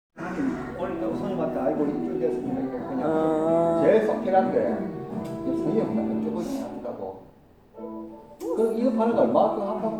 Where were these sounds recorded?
in a cafe